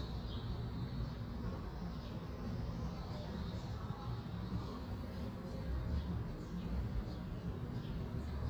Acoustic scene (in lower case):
residential area